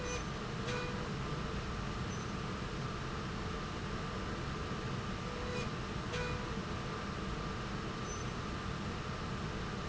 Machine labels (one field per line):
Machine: slide rail